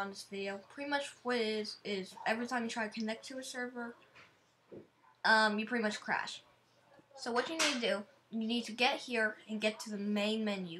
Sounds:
speech

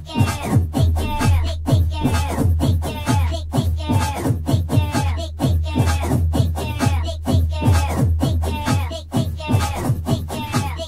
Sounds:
funk
music
dance music
soundtrack music

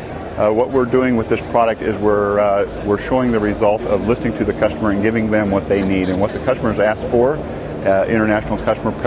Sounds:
speech

